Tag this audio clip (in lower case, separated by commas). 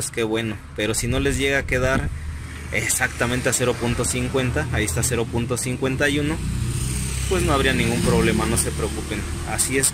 car engine idling